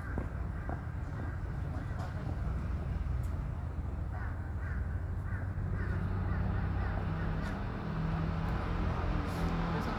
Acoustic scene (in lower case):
residential area